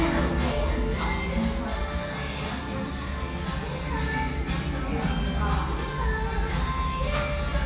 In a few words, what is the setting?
restaurant